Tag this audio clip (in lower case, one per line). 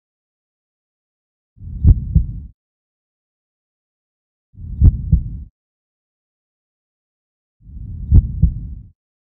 heart sounds